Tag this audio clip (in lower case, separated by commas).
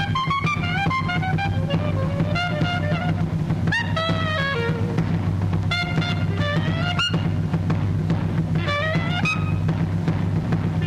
playing clarinet